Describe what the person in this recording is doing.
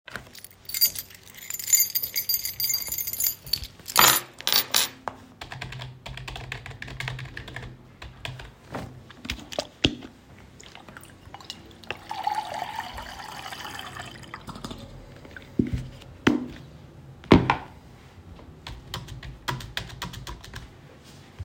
I sit in the living room and type on the keyboard. I place a keychain on the table and pour water into a cup.